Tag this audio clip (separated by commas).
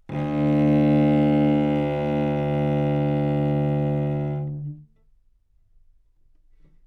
Bowed string instrument, Musical instrument, Music